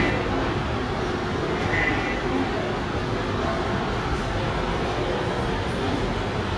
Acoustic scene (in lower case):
subway station